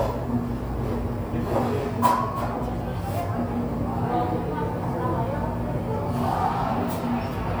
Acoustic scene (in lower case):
cafe